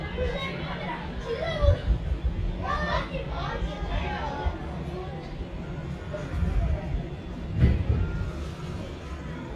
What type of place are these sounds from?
residential area